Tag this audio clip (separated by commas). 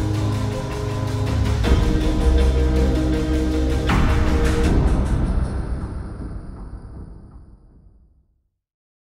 Music, Jazz, Rhythm and blues, New-age music